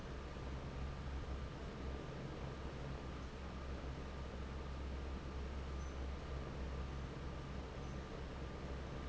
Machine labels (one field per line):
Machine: fan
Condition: normal